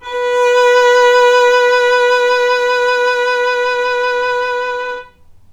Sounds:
Bowed string instrument, Music, Musical instrument

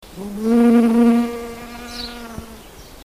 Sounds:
Wild animals, Insect, Animal

